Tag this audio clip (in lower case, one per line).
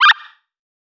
animal